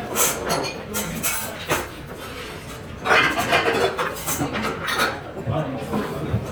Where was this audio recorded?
in a restaurant